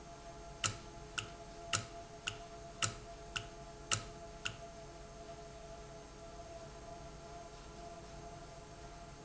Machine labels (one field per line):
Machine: valve